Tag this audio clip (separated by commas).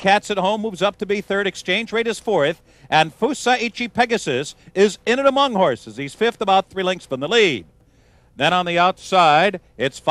Speech